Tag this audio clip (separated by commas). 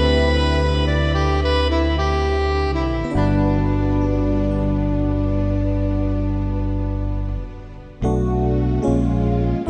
Musical instrument, Guitar, Acoustic guitar, Strum, Plucked string instrument, Music